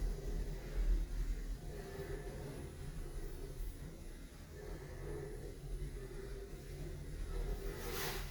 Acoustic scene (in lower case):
elevator